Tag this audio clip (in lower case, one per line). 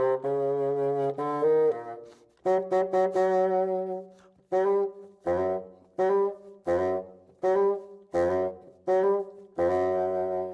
playing bassoon